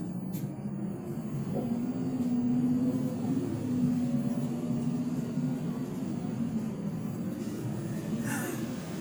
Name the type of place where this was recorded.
bus